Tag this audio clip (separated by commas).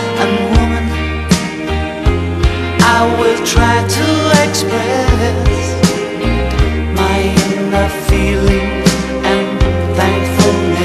Music